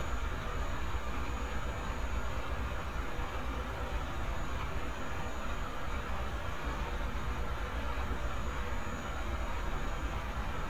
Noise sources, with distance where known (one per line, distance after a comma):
large-sounding engine, near